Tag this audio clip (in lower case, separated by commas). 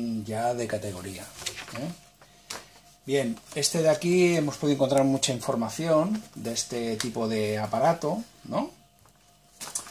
speech